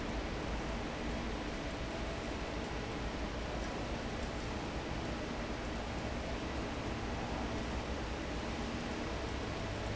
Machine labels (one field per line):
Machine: fan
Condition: normal